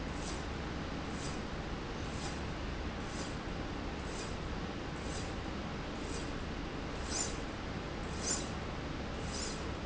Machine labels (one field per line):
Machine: slide rail